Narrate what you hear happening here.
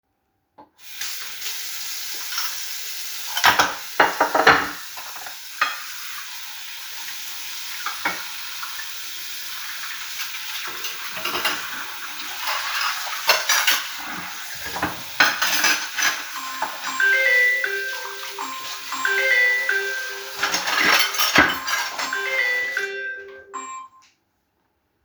I was washing the dishes when my phone started ringing. I turned off the water and went to check my phone.